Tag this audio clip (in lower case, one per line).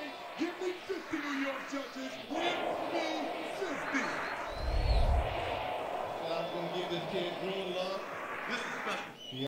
speech